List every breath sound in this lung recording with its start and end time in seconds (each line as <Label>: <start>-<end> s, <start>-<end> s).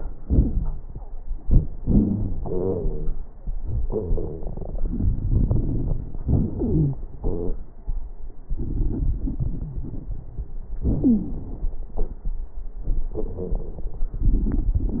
Inhalation: 1.81-2.41 s
Exhalation: 2.41-3.22 s
Wheeze: 0.27-0.82 s, 2.41-3.22 s, 11.02-11.40 s